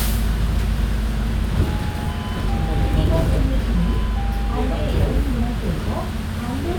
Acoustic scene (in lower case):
bus